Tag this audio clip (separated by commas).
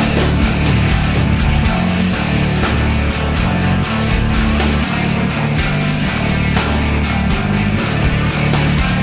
Music, Exciting music